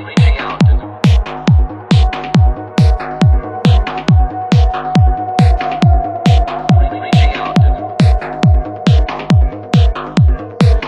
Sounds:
Music

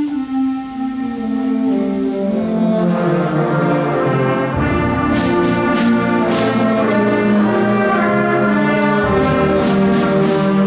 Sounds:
Music, Classical music, Orchestra

